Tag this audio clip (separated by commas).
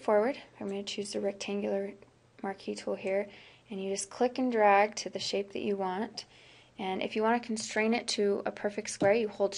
Speech